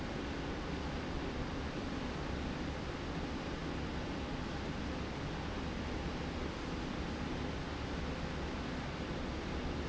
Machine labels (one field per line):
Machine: slide rail